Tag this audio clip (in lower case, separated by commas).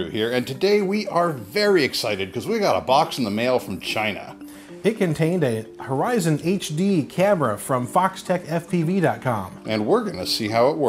speech, music